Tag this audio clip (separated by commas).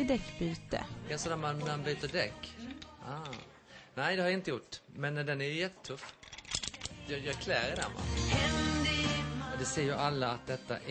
Music, Speech, Tools